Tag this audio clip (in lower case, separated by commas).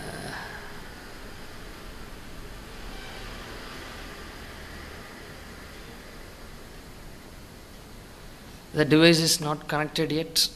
speech, inside a small room